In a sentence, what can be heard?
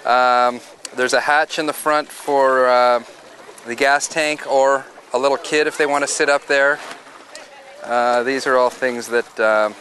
A man is speaking